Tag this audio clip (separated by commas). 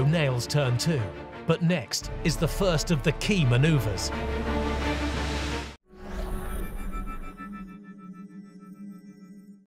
Music, Speech